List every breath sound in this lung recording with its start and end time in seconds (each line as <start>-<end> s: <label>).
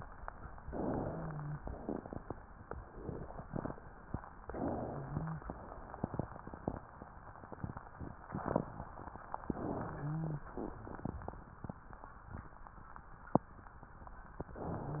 0.58-1.59 s: inhalation
0.58-1.59 s: wheeze
1.59-2.34 s: exhalation
4.43-5.49 s: inhalation
4.43-5.49 s: wheeze
9.46-10.48 s: inhalation
9.84-10.48 s: wheeze
14.43-15.00 s: inhalation
14.70-15.00 s: wheeze